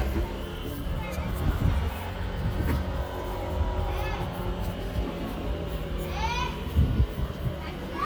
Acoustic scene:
residential area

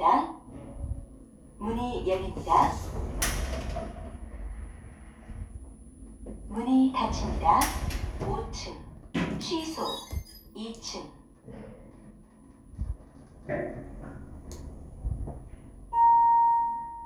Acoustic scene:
elevator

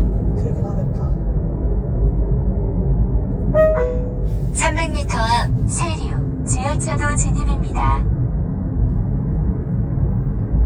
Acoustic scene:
car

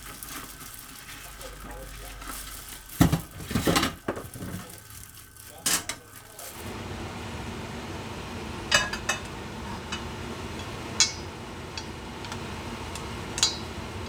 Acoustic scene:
kitchen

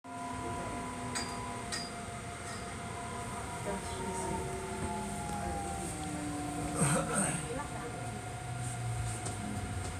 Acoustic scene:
subway train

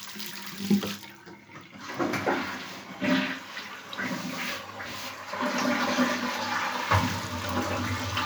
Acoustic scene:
restroom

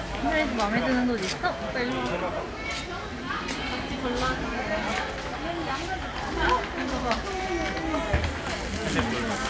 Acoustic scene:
crowded indoor space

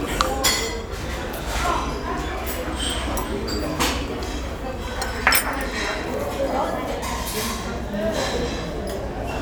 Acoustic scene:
restaurant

